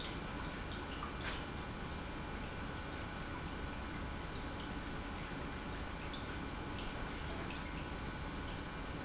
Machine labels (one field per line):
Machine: pump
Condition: normal